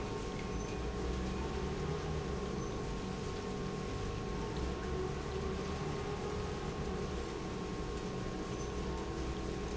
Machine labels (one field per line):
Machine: pump